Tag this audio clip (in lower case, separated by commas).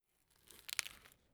crackle, fire